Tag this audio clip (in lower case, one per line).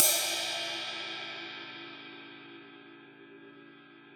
crash cymbal
percussion
cymbal
musical instrument
music